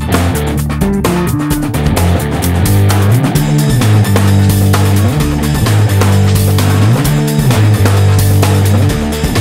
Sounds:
Music

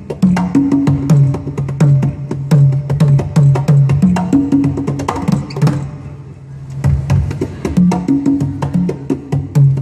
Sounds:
playing congas

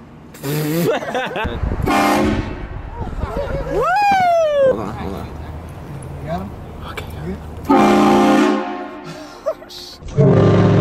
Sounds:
train horning

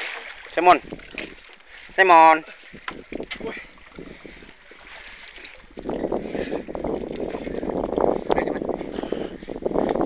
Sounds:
Speech, outside, rural or natural

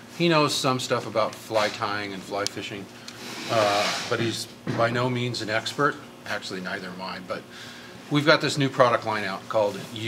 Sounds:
Speech, inside a large room or hall

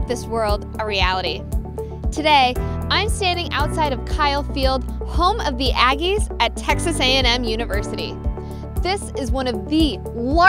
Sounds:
Music, Speech

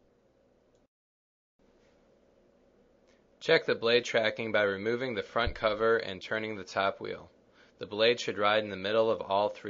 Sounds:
Speech

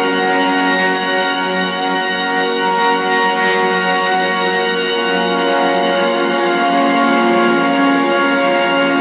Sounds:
Music

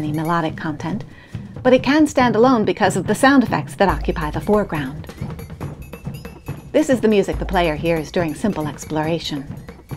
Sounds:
Speech, Music

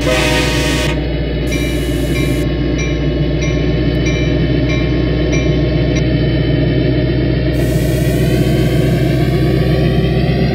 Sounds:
Vehicle, Rail transport, Train whistle, Train

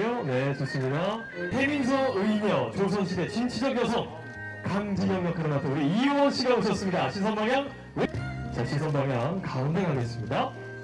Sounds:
Music, Speech

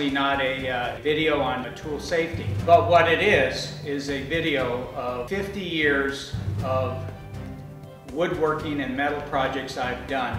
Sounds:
Speech, Music

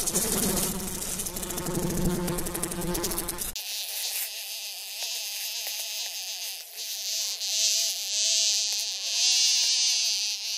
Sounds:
housefly buzzing

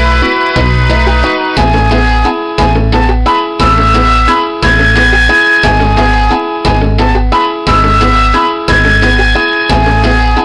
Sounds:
Music

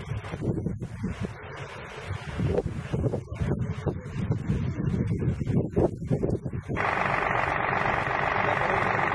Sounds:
wind noise, Wind noise (microphone), Wind

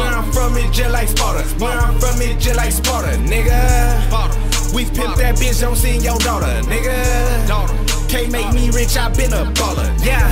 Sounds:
Music, Theme music

